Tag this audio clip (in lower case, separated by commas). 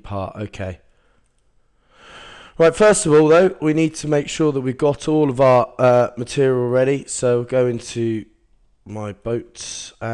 speech